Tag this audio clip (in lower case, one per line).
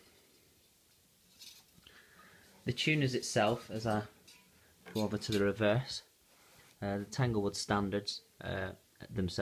speech